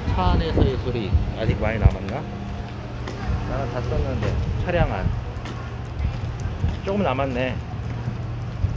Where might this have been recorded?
in a residential area